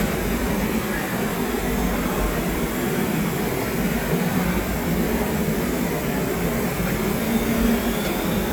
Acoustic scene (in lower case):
subway station